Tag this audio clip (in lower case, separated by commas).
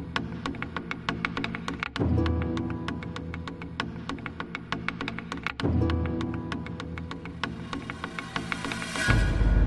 music, outside, rural or natural